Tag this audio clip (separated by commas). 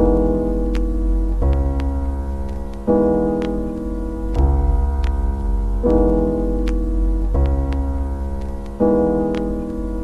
Music